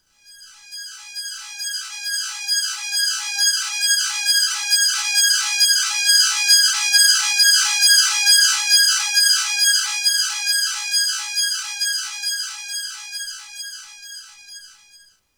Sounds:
alarm

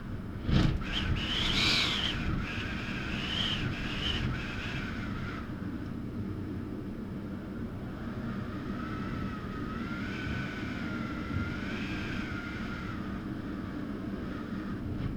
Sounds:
wind

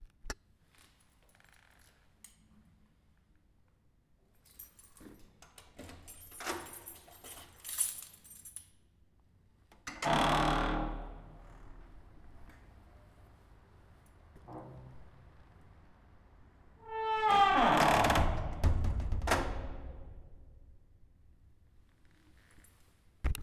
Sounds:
keys jangling
domestic sounds

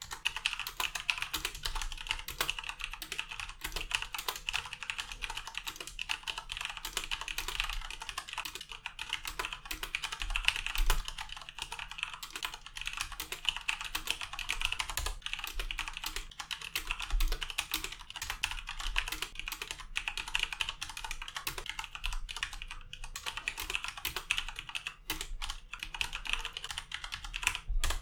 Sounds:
home sounds
typing

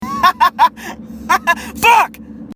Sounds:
human voice
laughter
speech

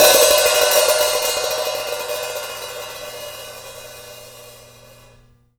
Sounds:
music
hi-hat
musical instrument
percussion
cymbal

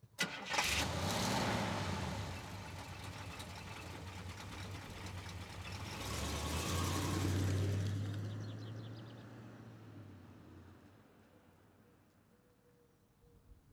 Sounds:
car
motor vehicle (road)
vehicle

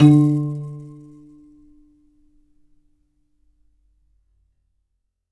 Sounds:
musical instrument
piano
keyboard (musical)
music

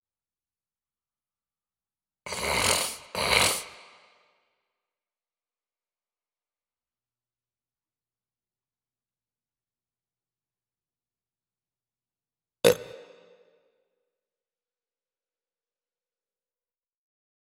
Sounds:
eructation

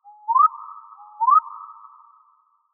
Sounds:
wild animals
animal
bird

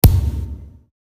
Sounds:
thump

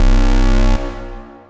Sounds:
alarm

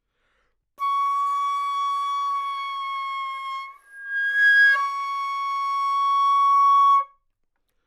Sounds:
music
musical instrument
wind instrument

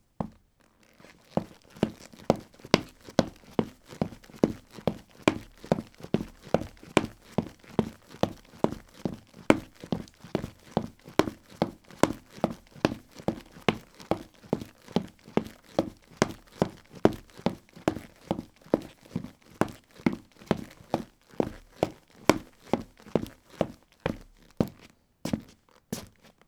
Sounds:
run

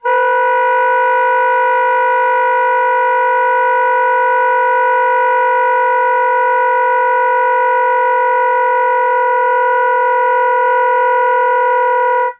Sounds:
music
wind instrument
musical instrument

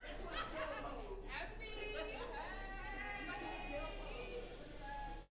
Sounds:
rail transport
vehicle
human voice
shout
speech
metro

